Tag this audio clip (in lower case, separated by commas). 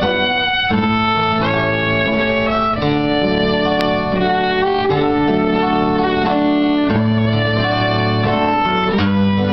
fiddle, playing violin, music, musical instrument, pizzicato